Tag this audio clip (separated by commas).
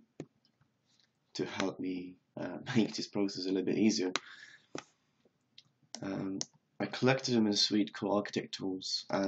Speech